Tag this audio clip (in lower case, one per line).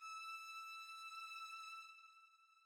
musical instrument
bowed string instrument
music